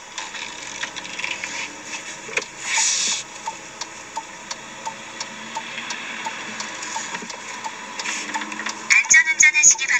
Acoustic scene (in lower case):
car